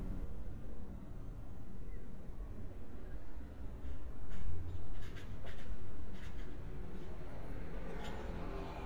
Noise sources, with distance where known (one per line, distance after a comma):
engine of unclear size, far